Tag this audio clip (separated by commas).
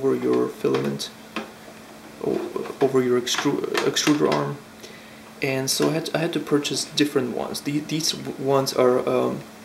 Speech